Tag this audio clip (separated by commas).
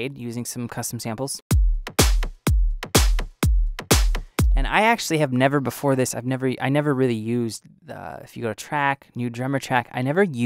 Percussion, Drum kit, Bass drum, Drum, Snare drum